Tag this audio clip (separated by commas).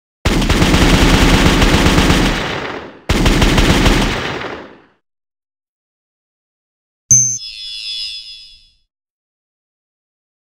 Machine gun